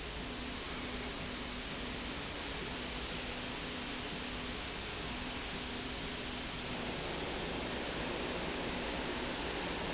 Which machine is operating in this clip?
slide rail